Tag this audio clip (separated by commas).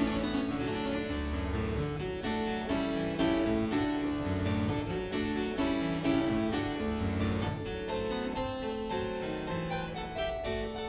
Harpsichord, Music, playing harpsichord